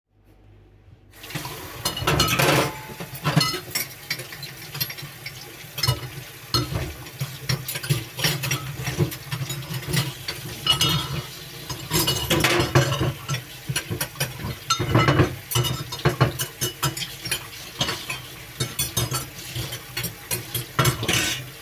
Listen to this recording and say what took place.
Water is turned on in the sink while dishes are moved around.